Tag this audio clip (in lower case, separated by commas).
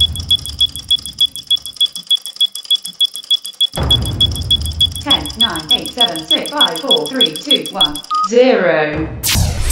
sound effect